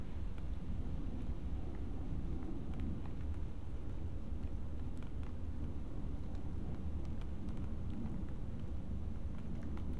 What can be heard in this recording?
background noise